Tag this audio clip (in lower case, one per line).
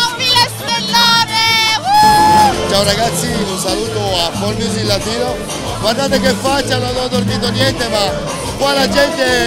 music
speech